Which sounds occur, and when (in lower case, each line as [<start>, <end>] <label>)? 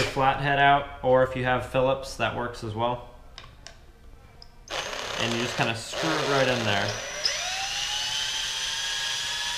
[0.00, 0.08] generic impact sounds
[0.00, 4.66] music
[3.59, 3.72] tick
[4.35, 4.43] clicking
[5.17, 6.98] man speaking
[5.91, 9.55] drill